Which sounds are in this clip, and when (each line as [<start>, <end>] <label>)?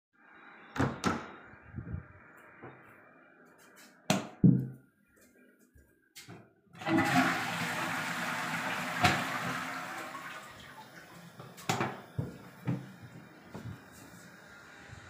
[0.71, 1.31] door
[4.06, 4.73] light switch
[6.78, 10.48] toilet flushing
[9.01, 9.14] light switch
[11.65, 12.09] light switch